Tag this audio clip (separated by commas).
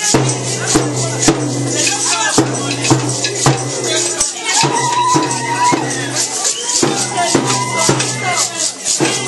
Music, Speech